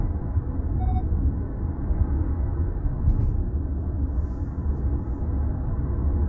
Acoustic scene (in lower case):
car